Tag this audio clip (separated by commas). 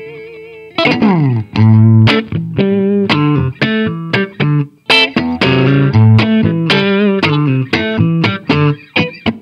Guitar, Strum, Music, Bass guitar, Musical instrument, Plucked string instrument